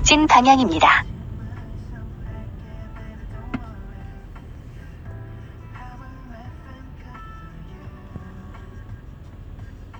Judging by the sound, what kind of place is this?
car